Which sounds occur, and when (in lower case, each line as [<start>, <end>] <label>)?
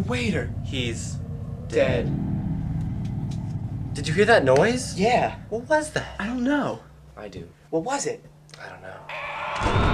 [0.00, 0.50] male speech
[0.00, 9.93] mechanisms
[0.01, 9.04] conversation
[0.66, 1.17] male speech
[1.71, 2.11] male speech
[2.11, 3.96] sound effect
[2.82, 2.87] tick
[3.06, 3.13] tick
[3.32, 3.39] tick
[3.51, 3.57] tick
[3.96, 5.37] male speech
[4.53, 4.61] tick
[5.56, 6.89] male speech
[5.97, 6.21] generic impact sounds
[7.12, 7.50] male speech
[7.31, 7.49] generic impact sounds
[7.74, 8.24] male speech
[8.48, 8.58] tick
[8.53, 9.04] male speech
[9.06, 9.93] sound effect
[9.56, 9.61] tick